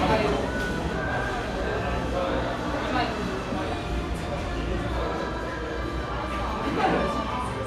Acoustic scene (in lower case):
cafe